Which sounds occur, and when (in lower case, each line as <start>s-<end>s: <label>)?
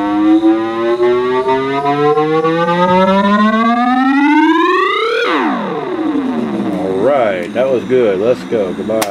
0.0s-9.0s: music
0.0s-9.1s: mechanisms
6.5s-9.1s: male speech
7.4s-7.5s: generic impact sounds